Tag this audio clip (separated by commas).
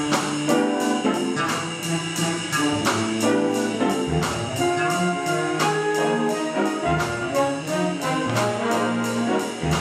Music, inside a large room or hall, Jazz, Musical instrument, Orchestra